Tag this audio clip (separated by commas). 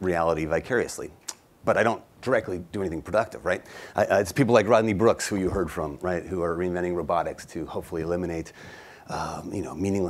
Speech